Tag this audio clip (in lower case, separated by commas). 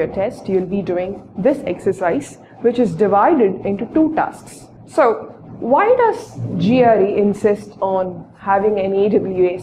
speech